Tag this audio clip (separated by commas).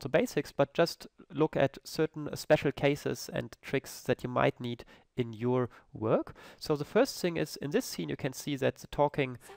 Speech